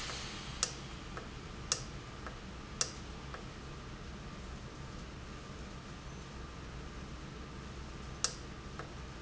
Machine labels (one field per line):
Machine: valve